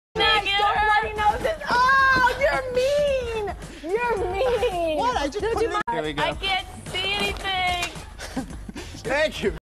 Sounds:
Music, Speech

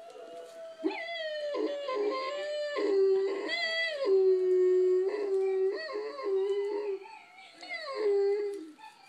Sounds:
pets, canids, Dog, Animal, inside a small room

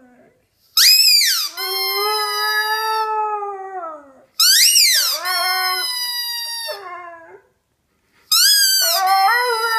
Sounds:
dog howling

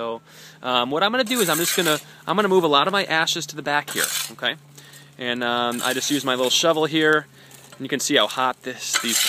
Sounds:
Speech

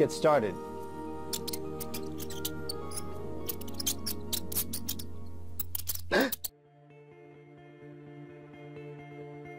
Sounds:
Speech, Mouse, Music

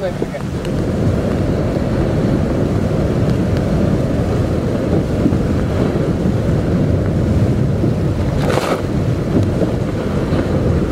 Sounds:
Speech, outside, rural or natural

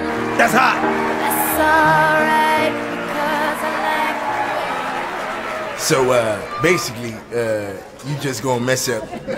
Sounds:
Speech, Music

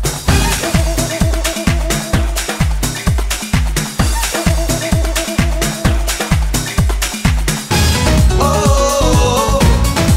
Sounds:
Music

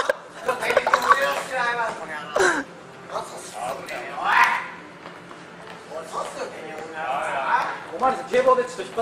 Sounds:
police radio chatter

